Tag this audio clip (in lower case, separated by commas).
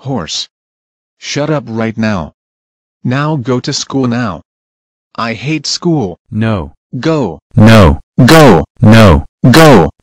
speech